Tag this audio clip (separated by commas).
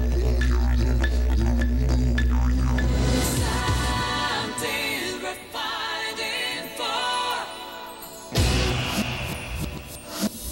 Music